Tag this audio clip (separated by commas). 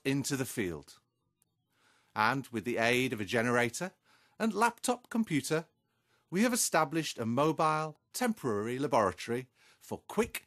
Speech